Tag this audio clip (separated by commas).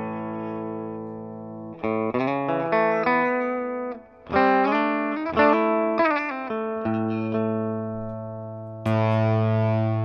Musical instrument, Plucked string instrument, Guitar, Distortion, Electric guitar, Music, Effects unit